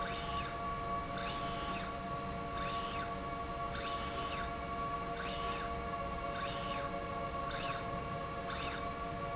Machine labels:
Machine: slide rail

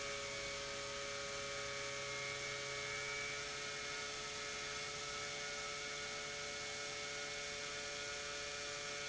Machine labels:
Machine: pump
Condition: normal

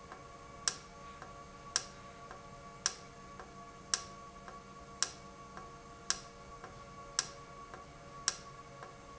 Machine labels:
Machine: valve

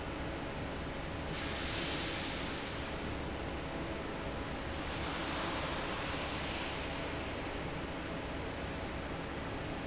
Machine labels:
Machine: fan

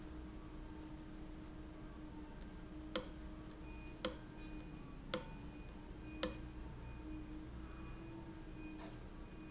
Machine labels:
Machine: valve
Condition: abnormal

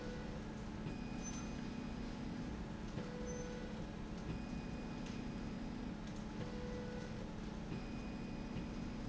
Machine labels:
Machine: slide rail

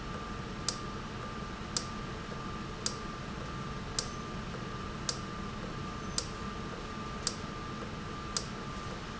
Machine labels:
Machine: valve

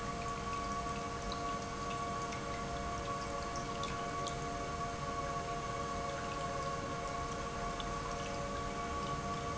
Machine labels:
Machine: pump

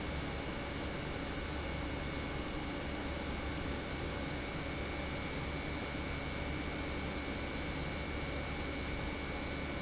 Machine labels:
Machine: pump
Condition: normal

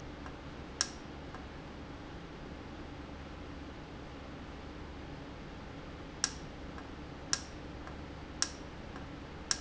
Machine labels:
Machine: valve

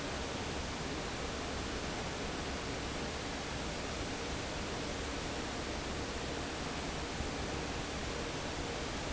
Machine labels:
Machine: fan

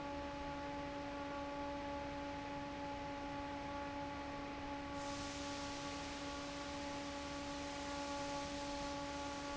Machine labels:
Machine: fan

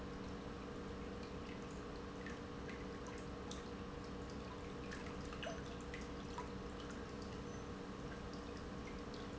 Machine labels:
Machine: pump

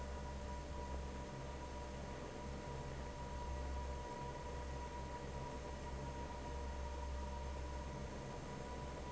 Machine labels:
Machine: fan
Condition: normal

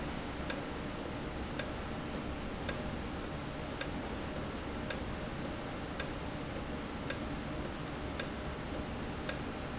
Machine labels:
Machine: valve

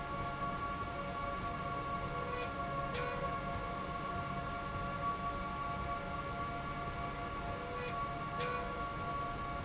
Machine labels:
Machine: slide rail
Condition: normal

